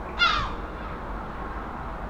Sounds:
animal, wild animals, bird, gull

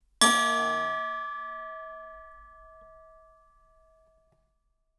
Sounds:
bell

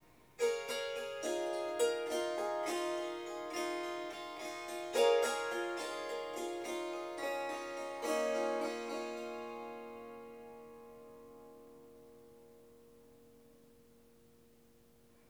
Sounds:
music, musical instrument, harp

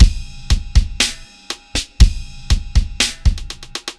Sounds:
percussion, music, drum kit, musical instrument

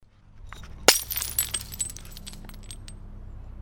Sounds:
crushing, glass, shatter

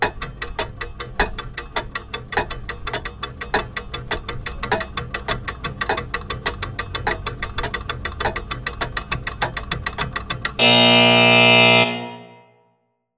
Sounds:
alarm, mechanisms, clock

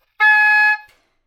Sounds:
musical instrument, music, woodwind instrument

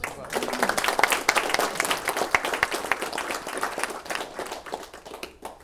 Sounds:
applause, human group actions

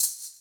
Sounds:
percussion, rattle (instrument), musical instrument, music

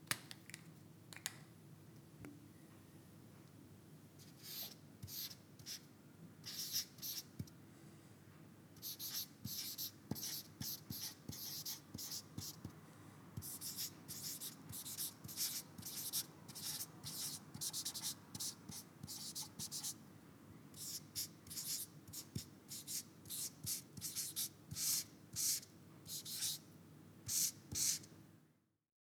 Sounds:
writing, home sounds

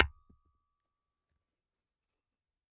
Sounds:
hammer, glass, tools, tap

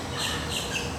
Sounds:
bird, animal, wild animals

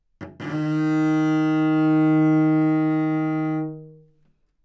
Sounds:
musical instrument, music, bowed string instrument

